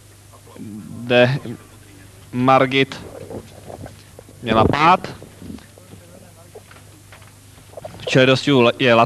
A man speaking calmly and directly into microphone in non-english language with faint voice in the background